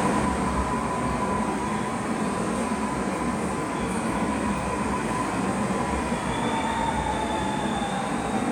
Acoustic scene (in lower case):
subway station